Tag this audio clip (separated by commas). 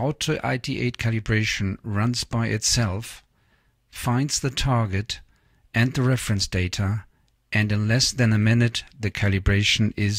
Speech